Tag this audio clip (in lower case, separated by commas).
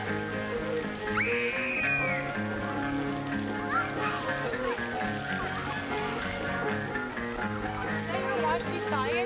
music, soundtrack music, speech